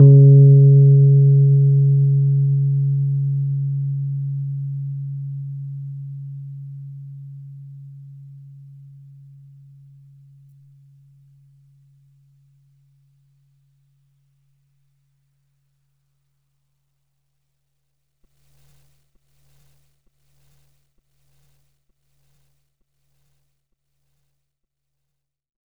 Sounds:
piano, musical instrument, music, keyboard (musical)

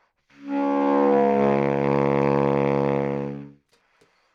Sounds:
woodwind instrument, musical instrument, music

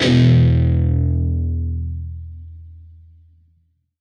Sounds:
musical instrument, guitar, plucked string instrument, music

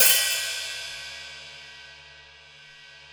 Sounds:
percussion, music, musical instrument, cymbal, hi-hat

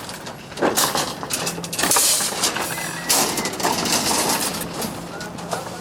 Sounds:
footsteps

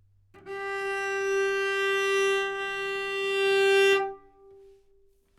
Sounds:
music, bowed string instrument, musical instrument

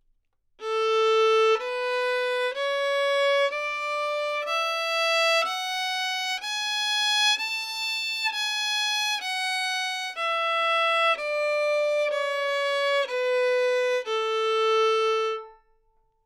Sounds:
music, bowed string instrument, musical instrument

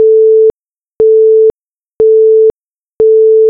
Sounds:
telephone, alarm

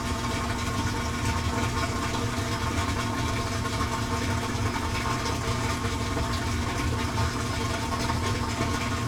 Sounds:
engine

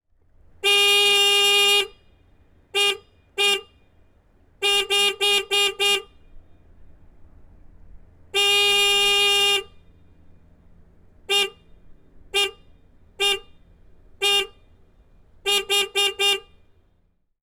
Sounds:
alarm, vehicle, honking, motor vehicle (road), car

